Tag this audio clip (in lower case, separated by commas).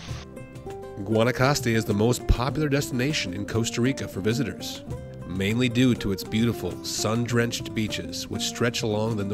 music, speech